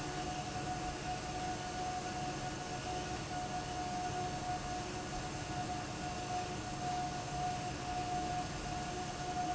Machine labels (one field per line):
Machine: fan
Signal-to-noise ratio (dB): -6 dB